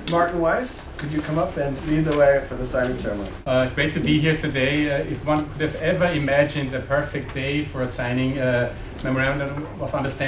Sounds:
Speech

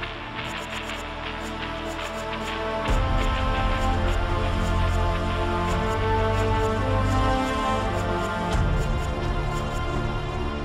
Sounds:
Music

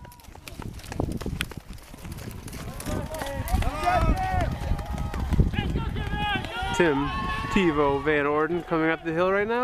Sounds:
Speech

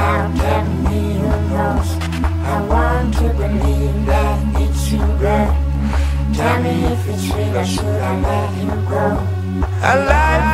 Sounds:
Music

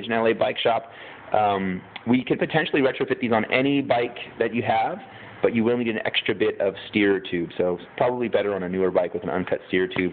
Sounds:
Speech

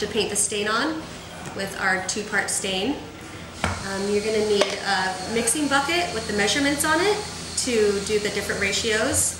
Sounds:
Speech

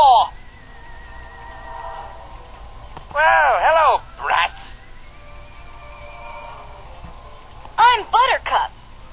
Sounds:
Speech

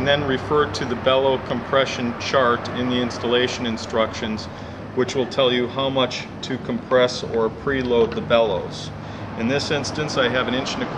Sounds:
Speech

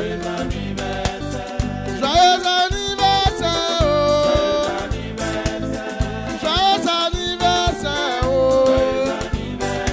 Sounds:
Music

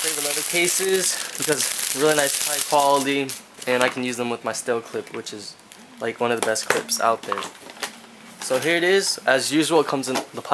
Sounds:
Speech

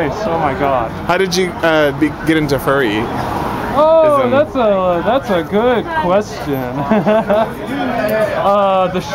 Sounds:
Speech

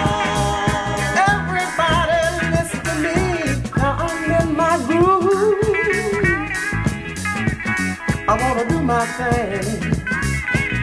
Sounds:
Ska, Pop music, Music

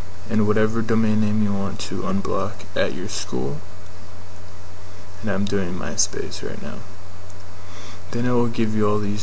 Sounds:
Speech

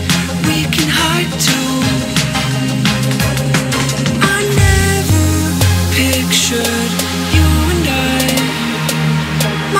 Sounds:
Dubstep, Music

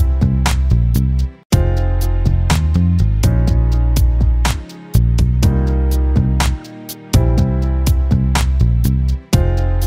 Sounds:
Music

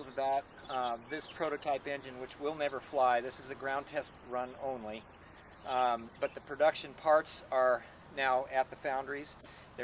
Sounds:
Speech

